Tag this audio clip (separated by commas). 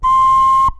Musical instrument, Wind instrument, Music